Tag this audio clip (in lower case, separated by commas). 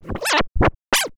scratching (performance technique), musical instrument, music